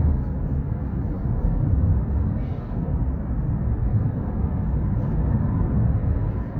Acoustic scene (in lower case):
car